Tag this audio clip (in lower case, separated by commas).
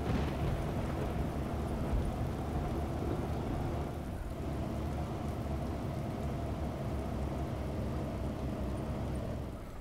vehicle